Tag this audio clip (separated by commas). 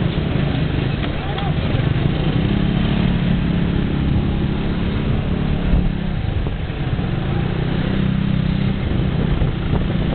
Vehicle, Motorcycle, driving motorcycle, Speech